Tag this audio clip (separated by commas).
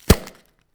Thump